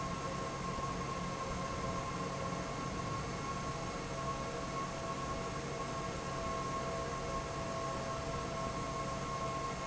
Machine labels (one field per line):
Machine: fan